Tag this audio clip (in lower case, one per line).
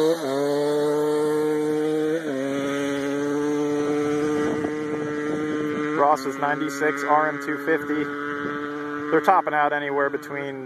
speech
vehicle